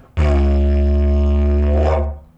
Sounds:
Music, Musical instrument

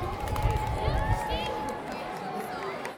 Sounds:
Human group actions, Crowd

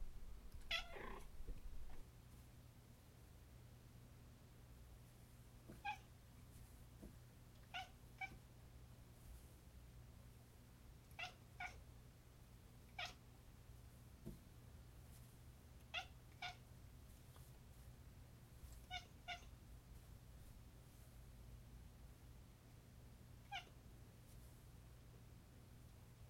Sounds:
Cat, Animal, pets

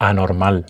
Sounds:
Human voice, Male speech, Speech

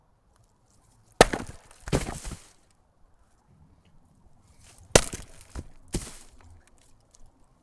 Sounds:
Wood

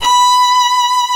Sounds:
Musical instrument, Bowed string instrument, Music

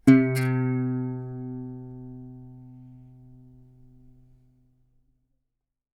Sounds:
Musical instrument, Guitar, Plucked string instrument, Music

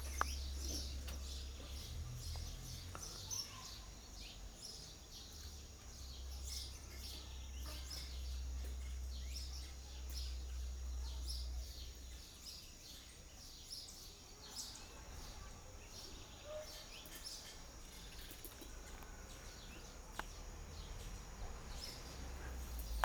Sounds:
Animal, Bird, Wild animals, bird song

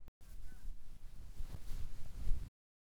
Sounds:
Wind

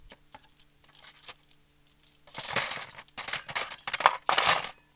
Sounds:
silverware, Domestic sounds

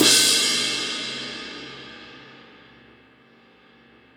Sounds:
Crash cymbal, Music, Cymbal, Musical instrument, Percussion

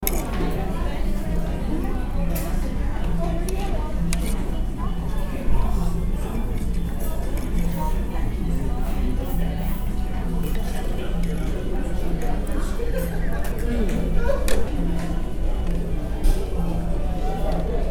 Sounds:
Chatter, Human group actions

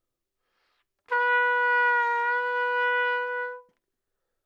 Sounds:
Musical instrument, Brass instrument, Trumpet, Music

